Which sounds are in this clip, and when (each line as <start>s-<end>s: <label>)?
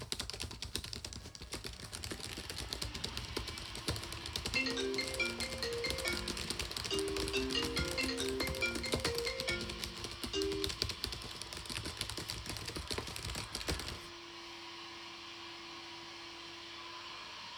0.0s-14.0s: keyboard typing
2.1s-17.6s: vacuum cleaner
4.3s-10.9s: phone ringing